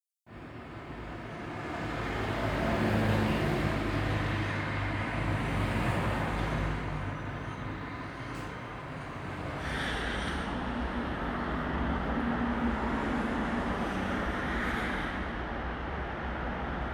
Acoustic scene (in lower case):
street